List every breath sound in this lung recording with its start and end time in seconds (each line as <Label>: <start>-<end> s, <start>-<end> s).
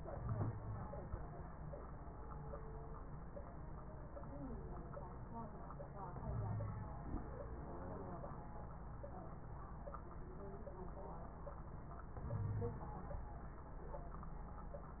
Inhalation: 0.15-0.81 s, 6.27-6.93 s, 12.30-12.85 s
Wheeze: 0.15-0.81 s, 6.27-6.93 s, 12.30-12.85 s